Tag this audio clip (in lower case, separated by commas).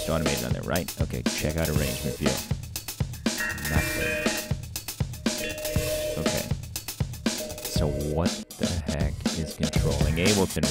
music, speech